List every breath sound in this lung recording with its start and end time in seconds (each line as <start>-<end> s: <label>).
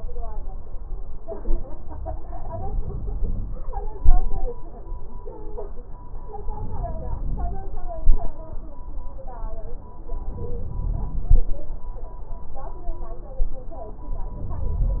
6.42-7.81 s: inhalation
10.17-11.55 s: inhalation
14.27-15.00 s: inhalation